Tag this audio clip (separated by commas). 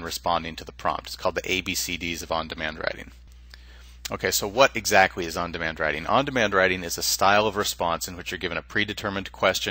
Speech